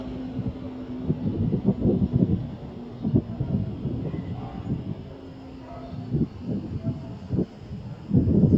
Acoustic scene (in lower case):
street